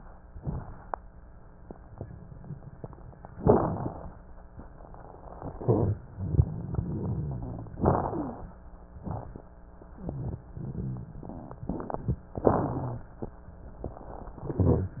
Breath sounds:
Inhalation: 3.36-4.21 s, 7.82-8.52 s, 12.39-13.09 s
Rhonchi: 5.48-7.76 s, 9.98-12.26 s
Crackles: 3.36-4.21 s, 7.82-8.52 s, 12.39-13.09 s

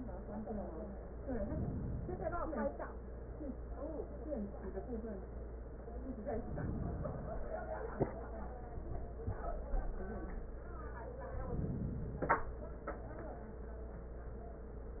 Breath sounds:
Inhalation: 1.08-2.58 s, 6.18-7.68 s, 11.29-12.79 s

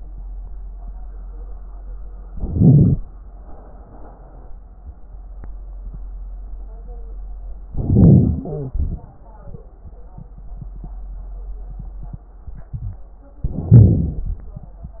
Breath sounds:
Inhalation: 2.27-3.00 s, 7.71-8.74 s, 13.44-14.34 s
Exhalation: 3.40-4.53 s, 8.73-9.63 s
Wheeze: 7.71-8.74 s
Crackles: 2.27-3.00 s, 7.71-8.74 s, 13.44-14.34 s

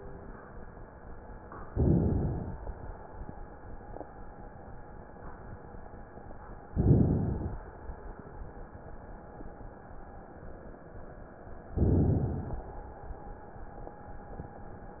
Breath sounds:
Inhalation: 1.70-2.69 s, 6.71-7.60 s, 11.76-12.65 s

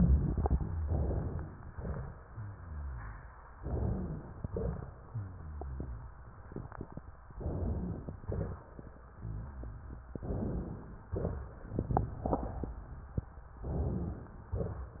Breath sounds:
Inhalation: 0.85-1.63 s, 3.57-4.42 s, 7.40-8.14 s, 10.21-11.10 s, 13.66-14.57 s
Exhalation: 1.63-2.31 s, 4.42-4.99 s, 8.14-8.75 s, 11.10-11.80 s, 14.57-15.00 s
Rhonchi: 2.24-3.43 s, 5.07-6.25 s, 9.15-10.22 s

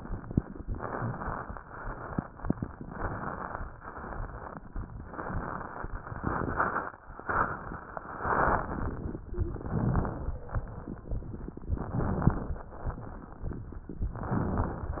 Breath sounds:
Inhalation: 0.66-1.56 s, 2.88-3.66 s, 5.08-5.87 s, 7.19-8.13 s, 9.43-10.37 s, 11.79-12.74 s, 14.04-14.98 s
Exhalation: 1.60-2.38 s, 3.82-4.60 s, 6.15-6.93 s, 8.23-9.17 s, 12.77-13.72 s, 14.98-15.00 s

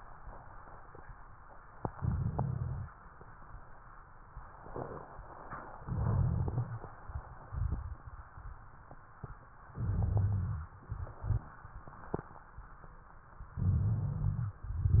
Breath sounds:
Inhalation: 1.92-2.86 s, 5.85-6.79 s, 9.78-10.67 s, 13.64-14.58 s
Rhonchi: 1.92-2.86 s, 5.85-6.79 s, 9.78-10.67 s, 13.64-14.58 s

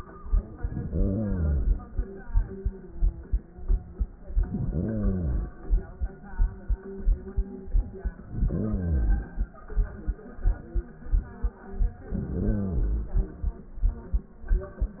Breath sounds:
Inhalation: 0.51-1.88 s, 4.21-5.59 s, 8.19-9.57 s, 12.00-13.37 s

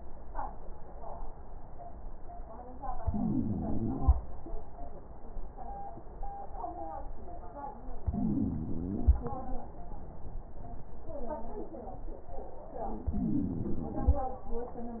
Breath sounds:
Inhalation: 2.96-4.29 s, 8.02-9.36 s, 13.00-14.30 s
Wheeze: 2.96-4.29 s, 8.02-9.36 s, 13.00-14.30 s

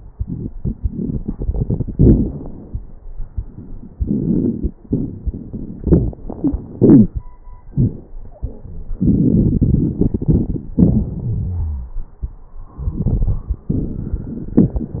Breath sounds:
Inhalation: 0.17-1.93 s, 3.33-5.79 s, 8.99-10.77 s, 12.74-14.55 s
Exhalation: 1.94-2.98 s, 5.85-7.21 s, 10.79-11.98 s, 14.57-15.00 s
Wheeze: 6.37-6.65 s, 10.79-11.98 s
Crackles: 0.17-1.93 s, 1.94-2.98 s, 3.33-5.79 s, 8.99-10.77 s, 12.74-14.55 s, 14.57-15.00 s

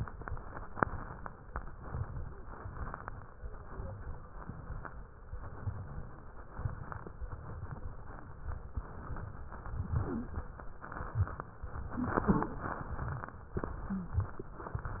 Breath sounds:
Inhalation: 0.00-0.78 s, 1.76-2.52 s, 3.35-4.05 s, 5.31-6.05 s, 7.23-7.88 s, 9.06-9.92 s, 10.78-11.55 s, 12.58-13.45 s, 14.58-15.00 s
Exhalation: 0.81-1.43 s, 2.54-3.31 s, 4.10-4.80 s, 6.56-7.11 s, 7.91-8.77 s, 9.91-10.69 s, 11.67-12.54 s, 13.57-14.48 s
Wheeze: 9.89-10.38 s, 11.89-12.54 s, 13.81-14.40 s
Crackles: 0.00-0.78 s, 0.81-1.43 s, 1.76-2.52 s, 2.54-3.31 s, 3.35-4.05 s, 4.10-4.80 s, 5.29-6.06 s, 6.52-7.11 s, 7.21-7.86 s, 7.93-8.79 s, 9.06-9.88 s, 10.78-11.57 s, 12.58-13.45 s, 14.58-15.00 s

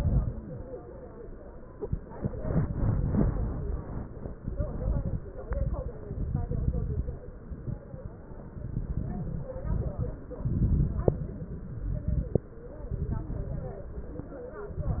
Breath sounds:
Inhalation: 0.00-0.64 s, 5.45-5.91 s, 9.56-10.22 s, 11.88-12.43 s, 14.67-15.00 s
Exhalation: 4.39-5.20 s, 6.04-7.16 s, 8.51-9.52 s, 10.34-11.40 s, 12.90-13.91 s
Stridor: 0.00-0.64 s
Crackles: 0.00-0.64 s, 4.39-5.20 s, 5.45-5.91 s, 6.04-7.16 s, 8.51-9.52 s, 9.56-10.22 s, 10.34-11.40 s, 11.88-12.43 s, 12.90-13.91 s, 14.67-15.00 s

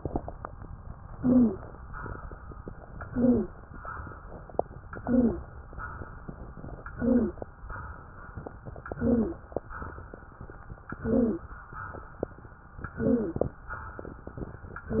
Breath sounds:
Inhalation: 1.06-1.71 s, 3.02-3.53 s, 4.93-5.45 s, 6.91-7.42 s, 8.99-9.51 s, 11.01-11.52 s, 13.00-13.51 s
Wheeze: 1.06-1.71 s, 3.02-3.53 s, 4.93-5.45 s, 6.91-7.42 s, 8.99-9.51 s, 11.01-11.52 s, 13.00-13.51 s

